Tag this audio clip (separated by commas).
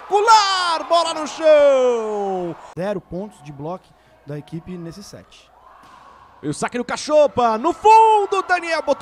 playing volleyball